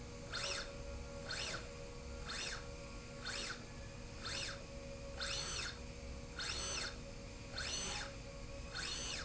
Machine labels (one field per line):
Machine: slide rail